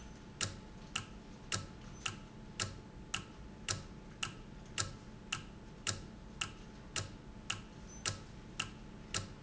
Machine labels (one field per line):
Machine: valve